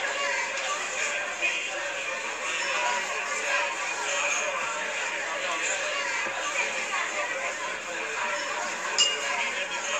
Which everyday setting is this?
crowded indoor space